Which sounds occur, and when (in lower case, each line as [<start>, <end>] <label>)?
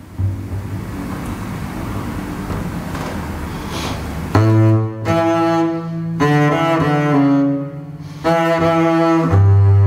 [0.00, 9.85] mechanisms
[0.14, 0.76] music
[2.42, 2.63] generic impact sounds
[2.90, 3.18] generic impact sounds
[4.30, 7.96] music
[8.21, 9.85] music